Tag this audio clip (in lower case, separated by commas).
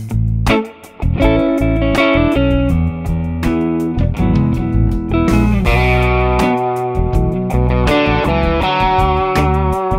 music